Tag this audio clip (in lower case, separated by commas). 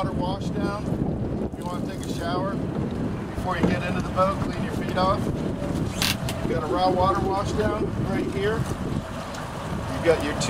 speech